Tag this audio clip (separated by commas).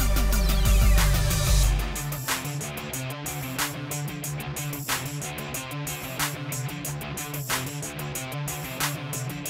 Music